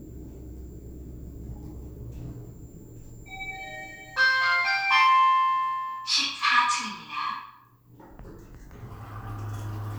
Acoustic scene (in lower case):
elevator